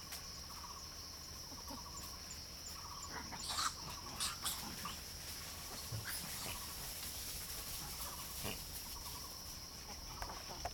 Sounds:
animal, dove, bird

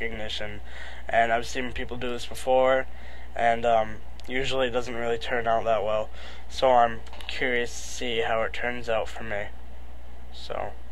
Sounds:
male speech, speech, monologue

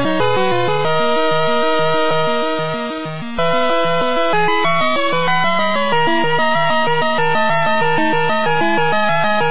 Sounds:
video game music, music

